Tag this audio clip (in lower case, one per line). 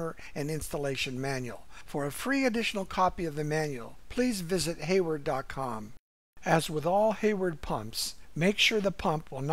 speech